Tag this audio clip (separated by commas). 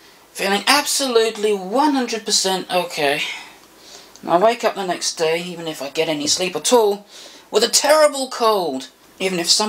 Speech, inside a small room